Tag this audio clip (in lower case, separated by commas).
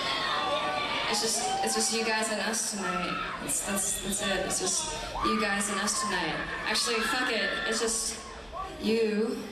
speech